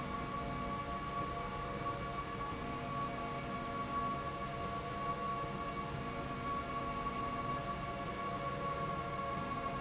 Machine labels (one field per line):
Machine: slide rail